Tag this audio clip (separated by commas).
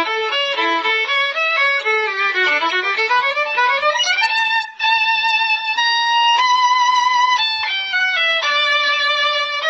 Musical instrument, Music, fiddle